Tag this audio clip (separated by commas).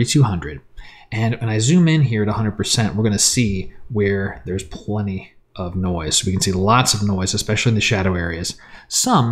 Speech